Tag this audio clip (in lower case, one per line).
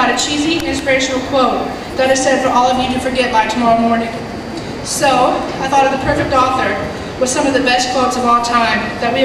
crowd
speech
inside a large room or hall